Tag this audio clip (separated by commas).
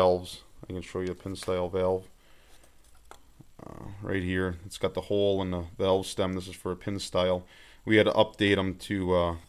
Speech